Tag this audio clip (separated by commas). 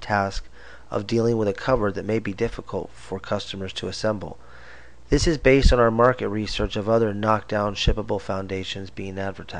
Speech